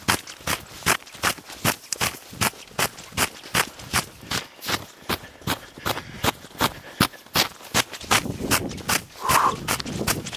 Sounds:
footsteps on snow

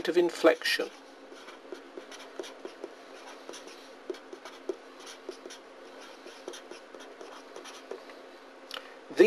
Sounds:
inside a small room, writing, speech

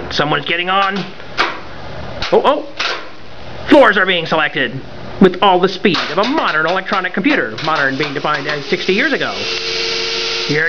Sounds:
speech, inside a large room or hall

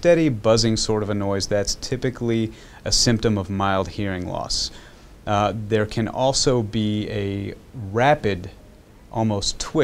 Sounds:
speech

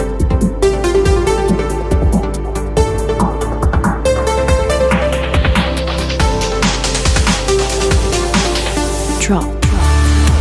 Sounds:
drum and bass

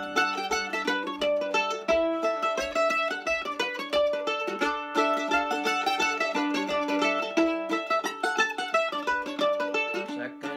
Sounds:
playing mandolin

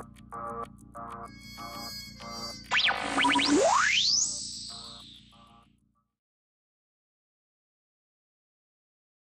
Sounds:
music

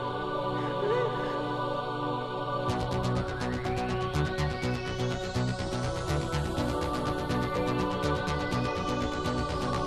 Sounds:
electronic music, music, techno

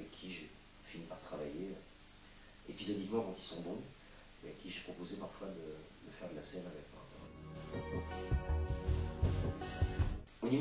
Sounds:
speech, music

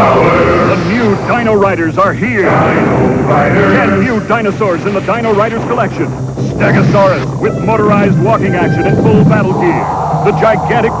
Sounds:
speech, music

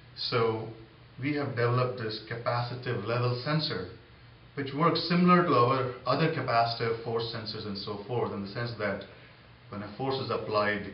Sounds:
speech

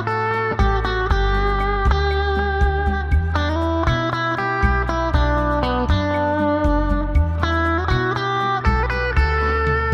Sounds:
music, lullaby

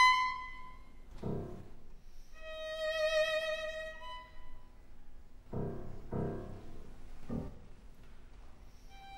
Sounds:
musical instrument, fiddle, music

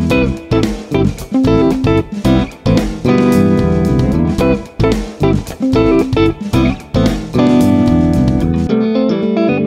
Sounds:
music, bass guitar

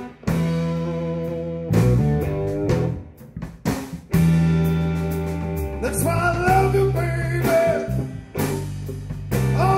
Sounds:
music, psychedelic rock

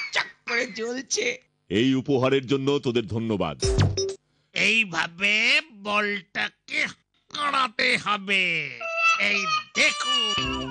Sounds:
speech, inside a small room

